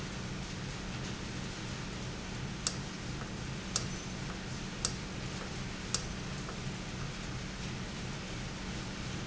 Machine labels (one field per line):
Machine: valve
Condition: normal